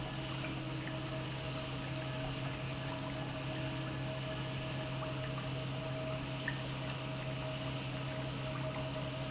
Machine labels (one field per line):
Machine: pump